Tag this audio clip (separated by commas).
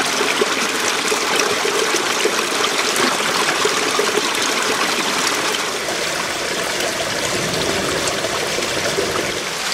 dribble